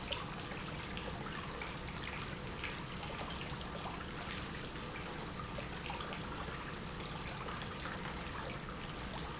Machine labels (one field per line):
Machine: pump